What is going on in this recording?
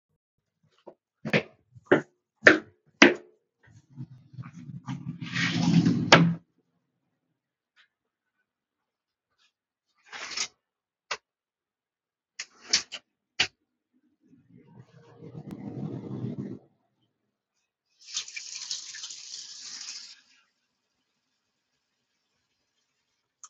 walked over to kitchen,opened kitchen door, opened and closed drawer, water flowing from tap